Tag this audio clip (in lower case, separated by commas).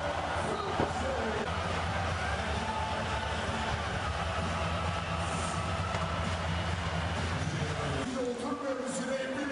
speech, music